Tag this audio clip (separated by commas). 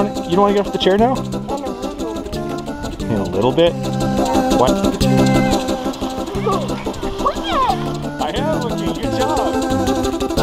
Speech, Music